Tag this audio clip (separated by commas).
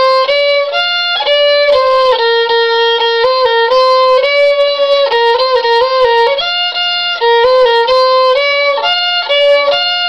Music, Musical instrument, fiddle